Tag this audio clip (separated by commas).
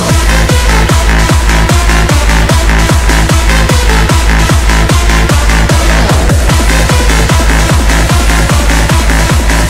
Music